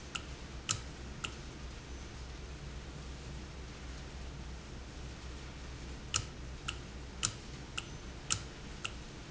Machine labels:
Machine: valve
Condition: normal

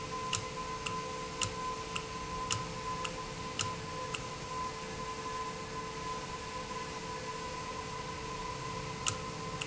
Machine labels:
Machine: valve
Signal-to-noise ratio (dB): -6 dB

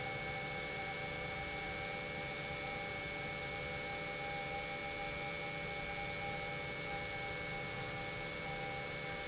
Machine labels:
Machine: pump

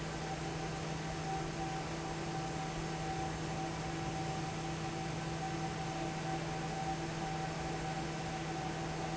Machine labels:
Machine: fan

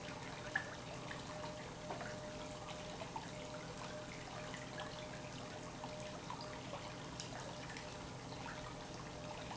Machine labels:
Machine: pump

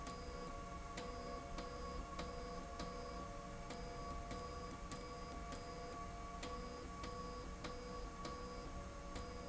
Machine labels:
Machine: slide rail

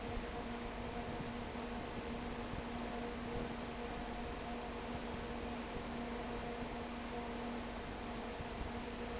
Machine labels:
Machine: fan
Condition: abnormal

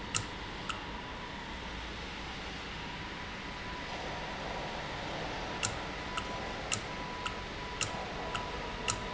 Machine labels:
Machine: valve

